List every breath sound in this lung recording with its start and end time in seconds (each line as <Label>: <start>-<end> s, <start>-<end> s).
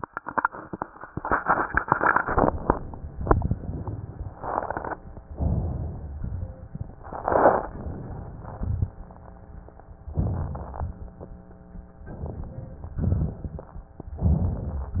Inhalation: 2.22-3.33 s, 5.28-6.16 s, 7.67-8.55 s, 10.10-10.84 s, 12.02-13.03 s, 14.20-15.00 s
Exhalation: 3.32-4.37 s, 6.20-6.99 s, 8.57-9.45 s, 10.85-11.34 s, 13.03-13.99 s